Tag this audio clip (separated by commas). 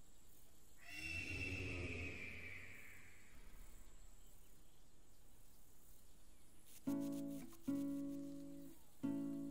outside, rural or natural, Music, Animal